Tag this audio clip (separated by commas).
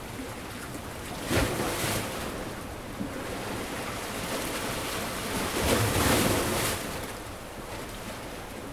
Water, Waves, Ocean